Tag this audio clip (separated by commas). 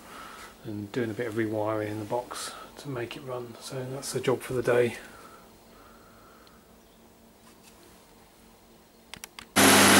Engine, Speech